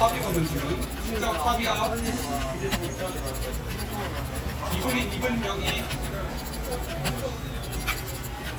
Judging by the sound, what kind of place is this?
crowded indoor space